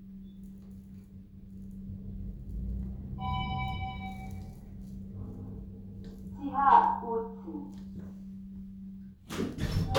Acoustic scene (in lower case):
elevator